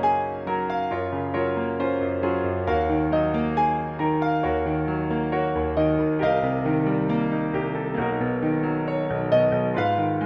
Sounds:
Music

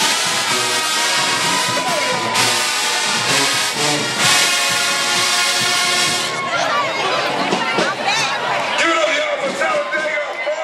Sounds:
people marching

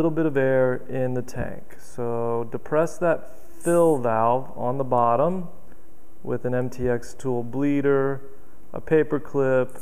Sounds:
Speech

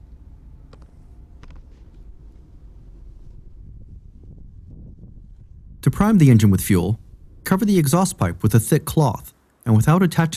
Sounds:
Speech, inside a small room

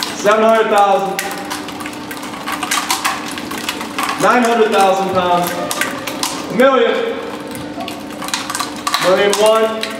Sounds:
Speech

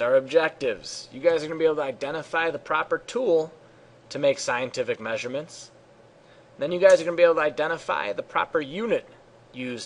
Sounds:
Speech

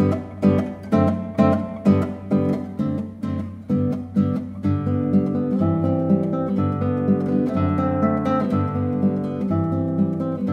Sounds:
Guitar, Acoustic guitar, Strum, Musical instrument, Plucked string instrument, Music

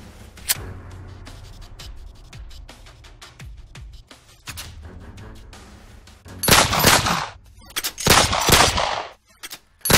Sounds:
Gunshot

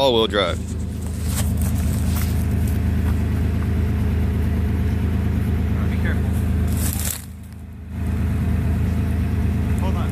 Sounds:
Vehicle, Speech, Car

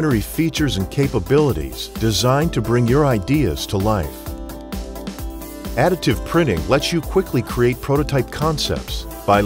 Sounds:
Music, Speech

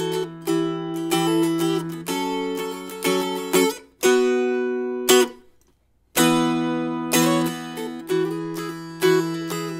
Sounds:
Music

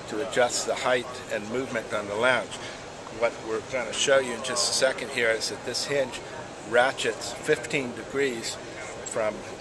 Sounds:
Speech

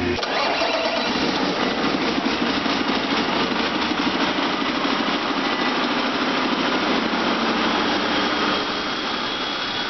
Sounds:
Idling, Engine

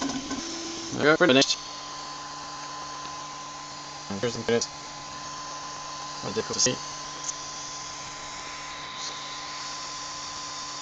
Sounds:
Printer, Speech

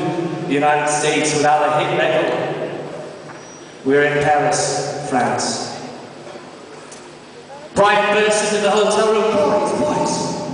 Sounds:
Speech

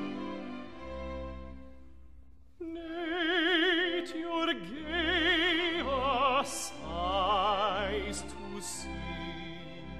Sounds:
Music

